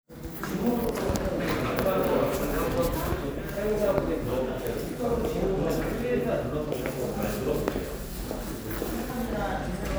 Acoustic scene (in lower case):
crowded indoor space